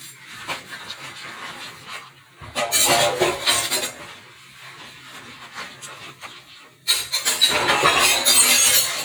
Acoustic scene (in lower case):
kitchen